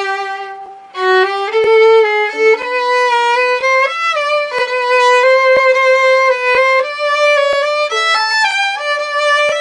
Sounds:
Music, fiddle, Musical instrument

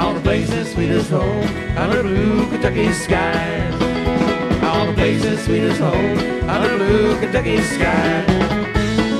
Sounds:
Singing, Music, Country

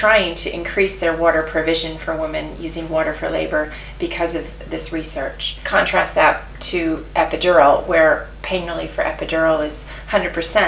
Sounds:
Speech

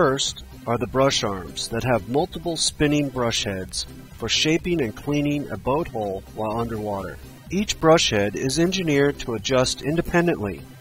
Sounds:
Speech

